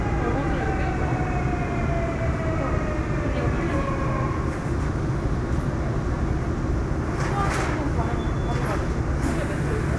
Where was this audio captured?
on a subway train